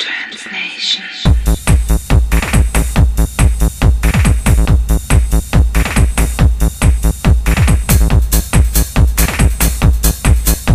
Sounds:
Sound effect, Music

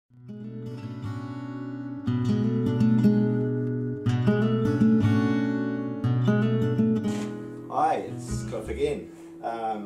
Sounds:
Music, Speech

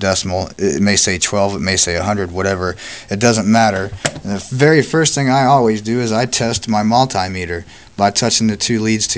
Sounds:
Speech

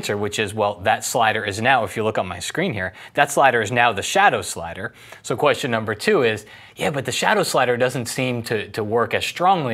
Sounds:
Speech

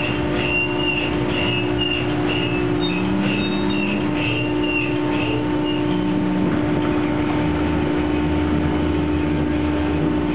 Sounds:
Truck, Vehicle

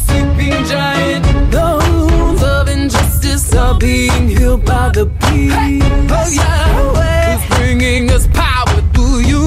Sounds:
Music

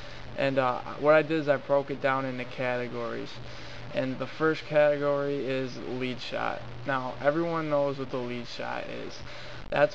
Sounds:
Speech

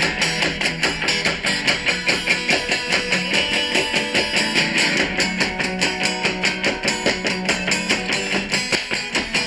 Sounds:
Music

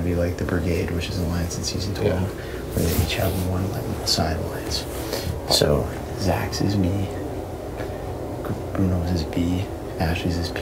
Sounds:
Speech

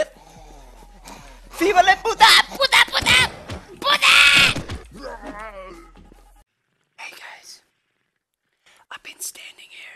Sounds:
Speech, Groan

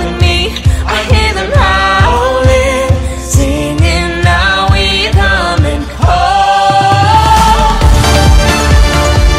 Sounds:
Music, Exciting music

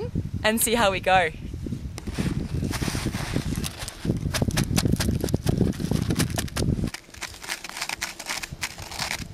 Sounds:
Speech

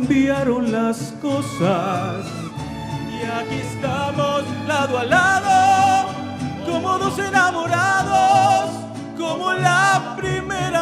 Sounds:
Music, Violin, Musical instrument

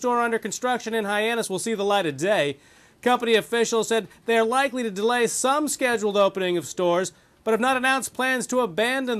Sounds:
Speech

